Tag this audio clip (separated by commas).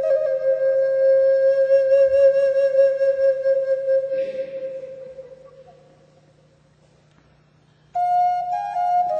Music, Flute